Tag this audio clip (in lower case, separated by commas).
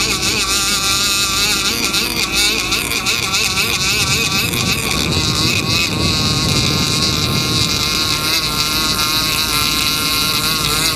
speedboat, vehicle